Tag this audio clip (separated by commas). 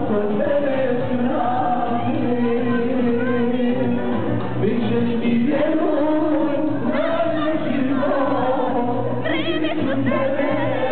Crowd, Music, Singing, inside a large room or hall